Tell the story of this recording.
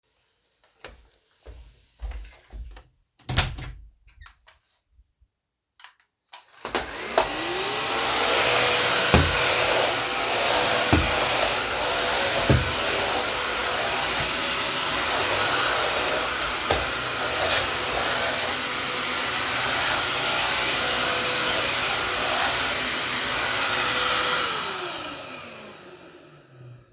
I opened the door, walked in and started vacuuming.